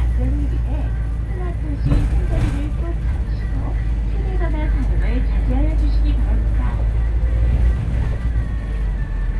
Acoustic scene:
bus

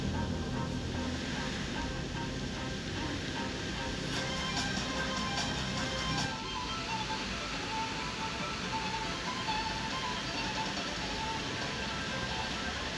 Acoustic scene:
park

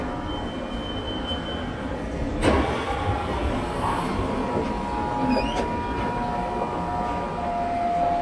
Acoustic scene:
subway station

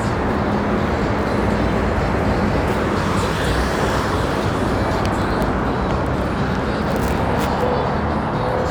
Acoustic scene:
street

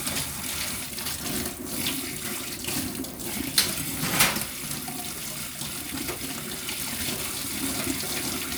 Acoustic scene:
kitchen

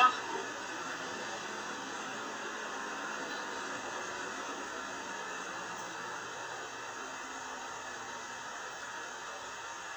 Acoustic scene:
bus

